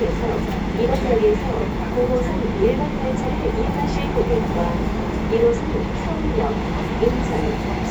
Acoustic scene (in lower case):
subway train